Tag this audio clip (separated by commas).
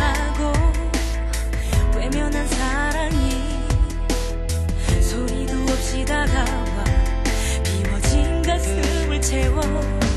Music, Tender music